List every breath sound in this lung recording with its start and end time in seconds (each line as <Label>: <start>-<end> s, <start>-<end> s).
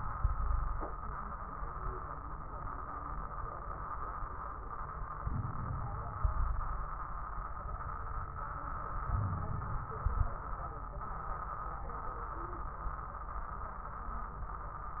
Inhalation: 5.21-6.21 s, 9.07-9.87 s
Exhalation: 0.13-0.89 s, 6.21-6.91 s, 9.88-10.49 s
Wheeze: 0.13-0.89 s, 6.22-6.91 s, 9.07-9.87 s
Crackles: 5.21-6.21 s, 9.88-10.49 s